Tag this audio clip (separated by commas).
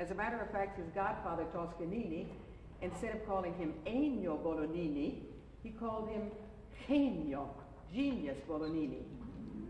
Speech